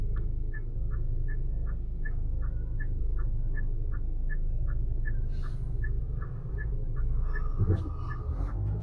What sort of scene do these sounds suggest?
car